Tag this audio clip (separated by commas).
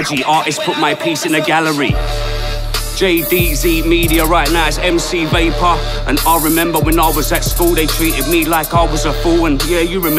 Rapping, Hip hop music, Music